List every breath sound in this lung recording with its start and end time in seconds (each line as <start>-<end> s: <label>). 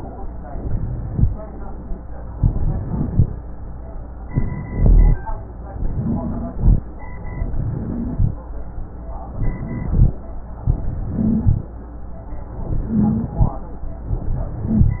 0.49-1.24 s: rhonchi
0.49-1.25 s: inhalation
2.35-3.25 s: crackles
2.37-3.27 s: inhalation
4.29-5.18 s: inhalation
4.29-5.18 s: rhonchi
5.81-6.58 s: wheeze
5.81-6.83 s: inhalation
7.44-8.33 s: inhalation
7.51-8.31 s: wheeze
9.34-10.00 s: wheeze
9.34-10.13 s: inhalation
10.76-11.67 s: inhalation
10.95-11.60 s: wheeze
12.69-13.61 s: inhalation
12.79-13.44 s: wheeze
14.12-15.00 s: inhalation
14.44-15.00 s: wheeze